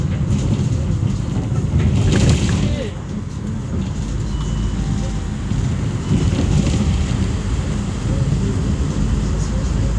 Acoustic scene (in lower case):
bus